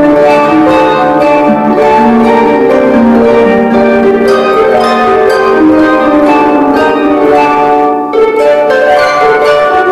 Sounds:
pizzicato, harp, playing harp

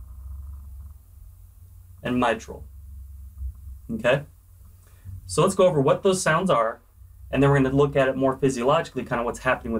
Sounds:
speech

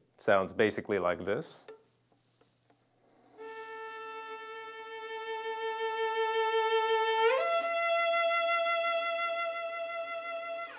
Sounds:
fiddle, music, musical instrument, speech

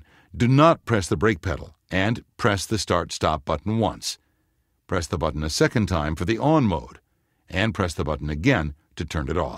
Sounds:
speech

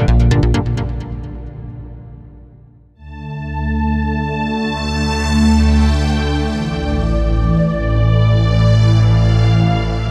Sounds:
sampler, music

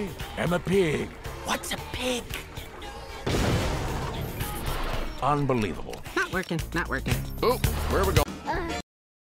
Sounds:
speech, music

